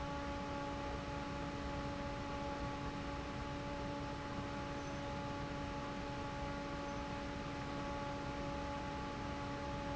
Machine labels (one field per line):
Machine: fan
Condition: normal